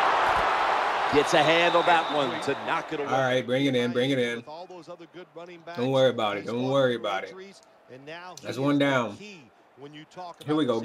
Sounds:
Speech

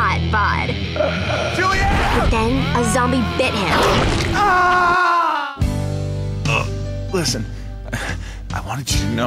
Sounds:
Speech, Music

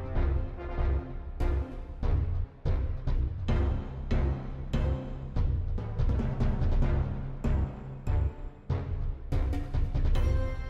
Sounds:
Music

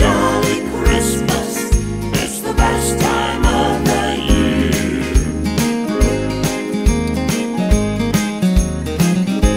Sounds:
Christian music, Christmas music, Music

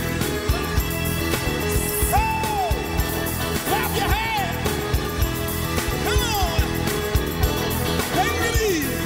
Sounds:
Speech, Music

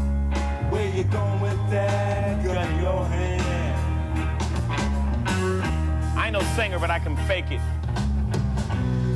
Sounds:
Speech, Music, Male singing

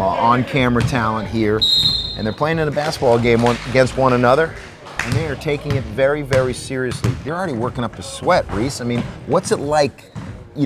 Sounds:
Speech

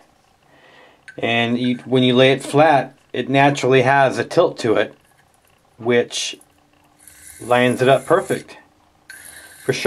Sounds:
Speech, Wood, inside a small room

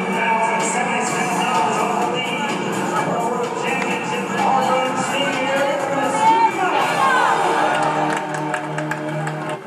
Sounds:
Speech, Music

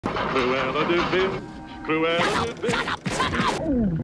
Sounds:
Speech

